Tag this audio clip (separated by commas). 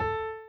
Keyboard (musical), Musical instrument, Piano, Music